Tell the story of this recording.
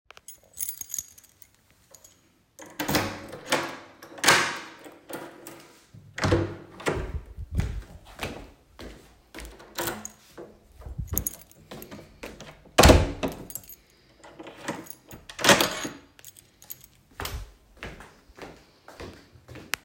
I picked up my keychain and jingled it loudly. I then walked toward the door with audible footsteps. I opened the door and stepped through, then closed it behind me.